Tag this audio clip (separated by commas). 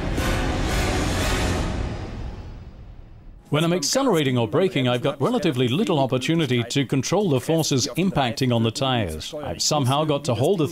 Speech, Music